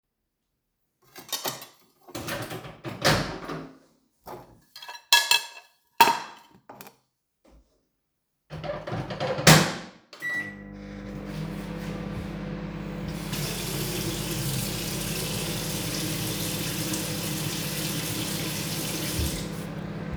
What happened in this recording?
I put the dish inside the microwave, I turn on the microwave, I also turn on the sink to wash my hand at the same time.